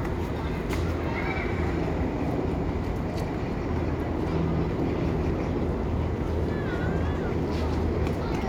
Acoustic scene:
residential area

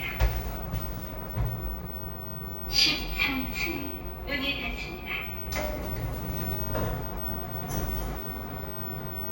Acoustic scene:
elevator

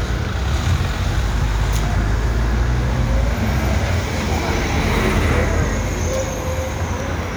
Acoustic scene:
street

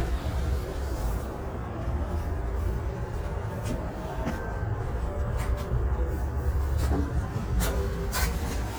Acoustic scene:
elevator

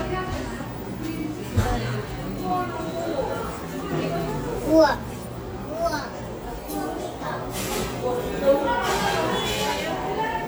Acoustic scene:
cafe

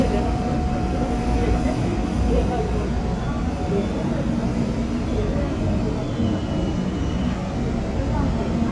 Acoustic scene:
subway train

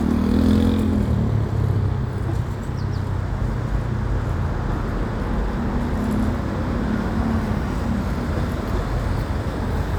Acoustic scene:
street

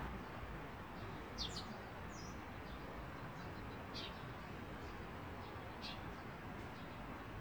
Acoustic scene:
park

